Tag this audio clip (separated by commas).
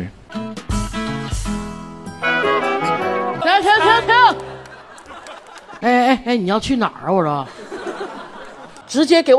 yodelling